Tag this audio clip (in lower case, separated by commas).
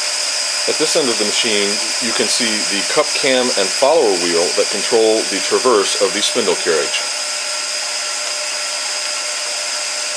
engine, speech